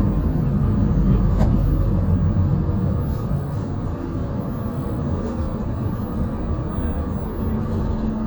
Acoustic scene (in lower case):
bus